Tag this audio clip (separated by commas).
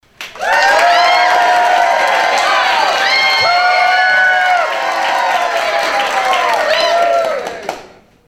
Cheering, Applause, Human group actions, Crowd